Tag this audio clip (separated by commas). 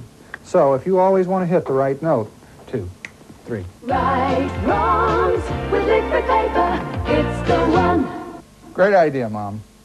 Music, Speech